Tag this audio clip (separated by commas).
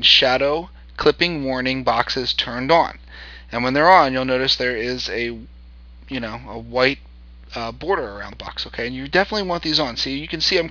Speech